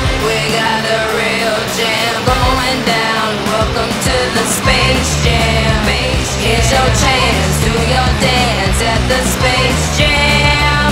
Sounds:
Music

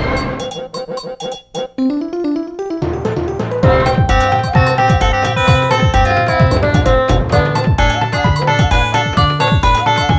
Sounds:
Music

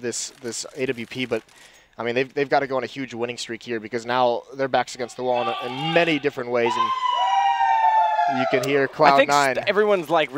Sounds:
Speech

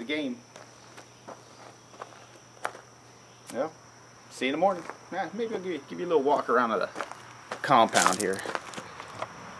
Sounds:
Insect, Cricket

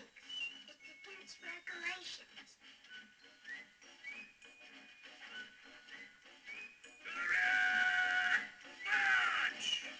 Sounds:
Speech, inside a small room, Television, Music

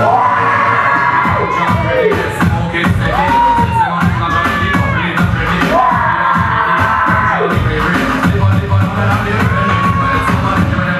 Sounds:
Music

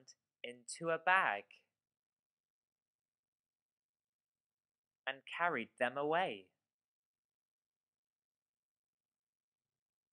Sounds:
Speech

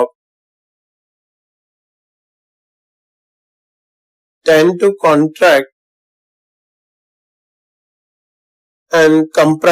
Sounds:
Speech

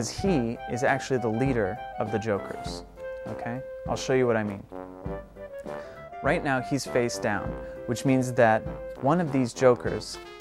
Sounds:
Music, Speech

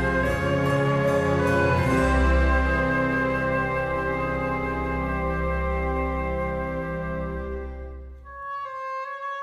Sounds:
Music

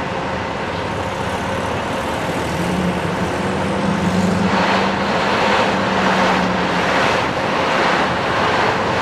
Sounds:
Car, Car passing by, Vehicle

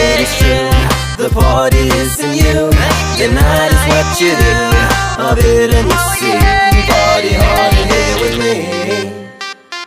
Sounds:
Music, Singing, Music of Africa

